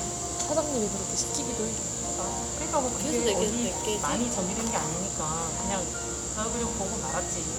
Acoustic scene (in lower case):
cafe